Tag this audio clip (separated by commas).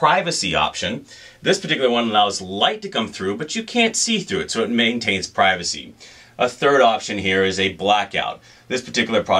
Speech